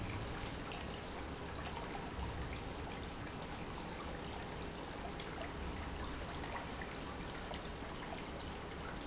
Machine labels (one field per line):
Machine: pump